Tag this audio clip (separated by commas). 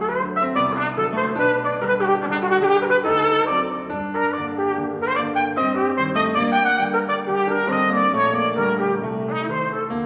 Music, Piano, Trumpet